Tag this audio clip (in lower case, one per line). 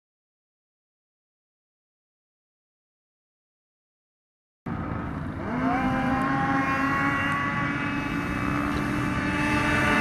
driving snowmobile